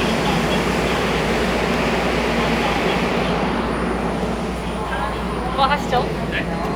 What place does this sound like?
subway station